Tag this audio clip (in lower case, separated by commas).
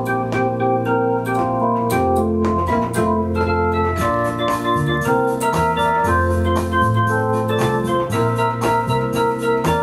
keyboard (musical), piano